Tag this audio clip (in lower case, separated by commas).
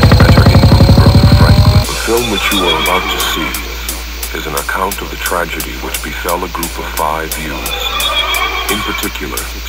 speech, music